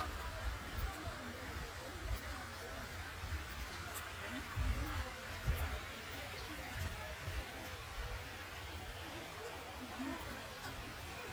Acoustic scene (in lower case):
park